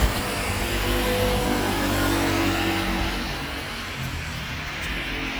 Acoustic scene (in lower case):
street